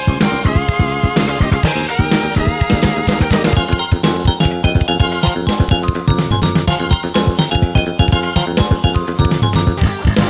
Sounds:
drum kit
percussion
hi-hat
drum
cymbal
music
musical instrument

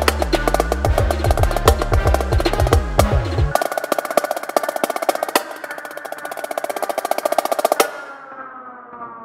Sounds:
playing snare drum

